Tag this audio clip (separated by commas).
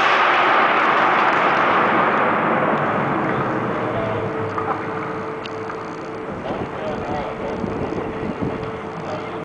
Speech